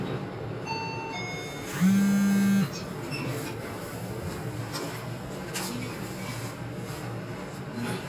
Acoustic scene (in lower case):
elevator